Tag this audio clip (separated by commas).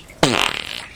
Fart